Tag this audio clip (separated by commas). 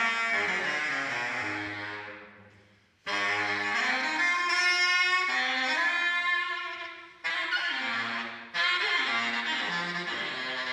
woodwind instrument